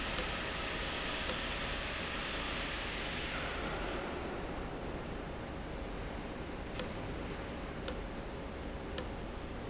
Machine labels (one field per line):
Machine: valve